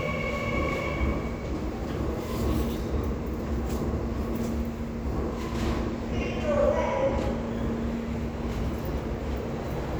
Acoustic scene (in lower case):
subway station